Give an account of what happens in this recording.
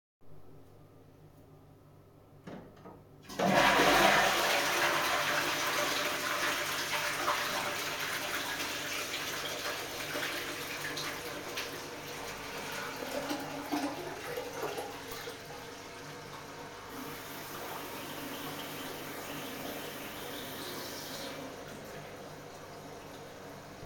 I flushed the toilet and then went to the sink to wash my hands.